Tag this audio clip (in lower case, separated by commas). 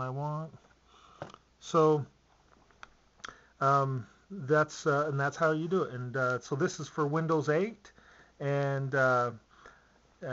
computer keyboard, speech